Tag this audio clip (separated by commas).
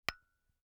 Glass, Tap